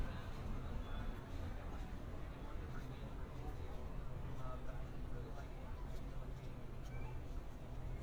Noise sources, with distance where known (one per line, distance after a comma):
person or small group talking, far